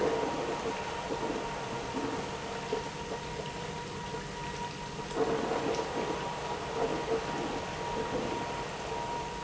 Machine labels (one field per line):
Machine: pump